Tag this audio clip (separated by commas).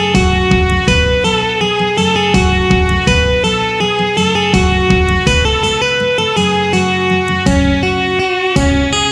Strum, Music, Musical instrument, Electric guitar, Bass guitar, Guitar, Plucked string instrument